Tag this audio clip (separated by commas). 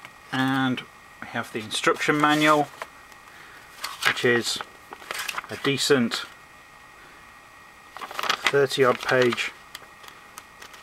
Speech